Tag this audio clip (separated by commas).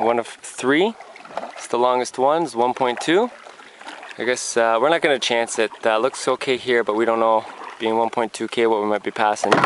Speech, kayak